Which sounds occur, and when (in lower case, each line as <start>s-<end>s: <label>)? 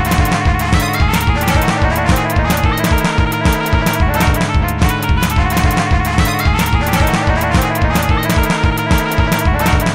0.0s-9.9s: music